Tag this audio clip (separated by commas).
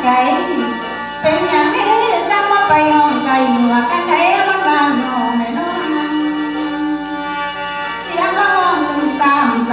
Music